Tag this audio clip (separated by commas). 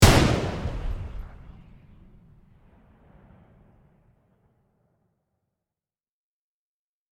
Gunshot, Explosion